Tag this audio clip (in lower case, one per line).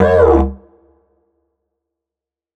musical instrument
music